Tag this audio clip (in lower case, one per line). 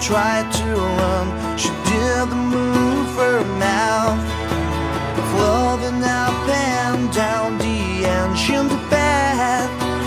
music